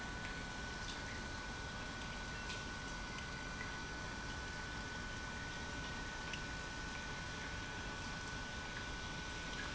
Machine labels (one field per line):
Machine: pump